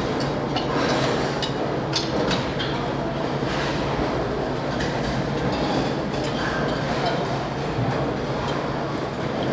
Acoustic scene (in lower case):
restaurant